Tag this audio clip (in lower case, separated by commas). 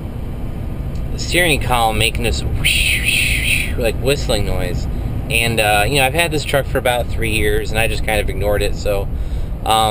speech